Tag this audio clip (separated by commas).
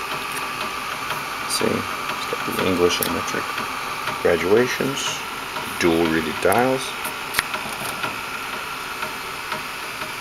Speech